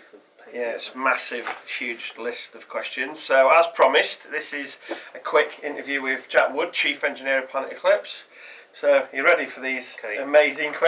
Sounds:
speech

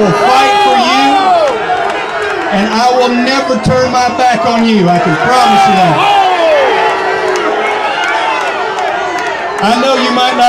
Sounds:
crowd, speech, outside, urban or man-made

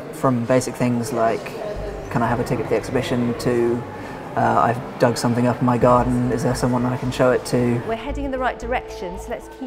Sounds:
speech, music

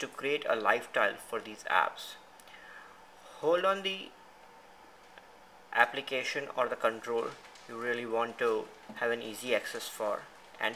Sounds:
speech

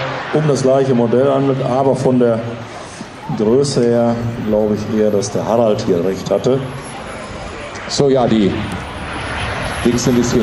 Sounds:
aircraft, speech

